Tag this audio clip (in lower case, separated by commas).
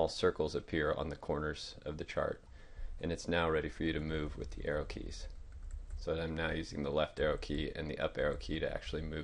speech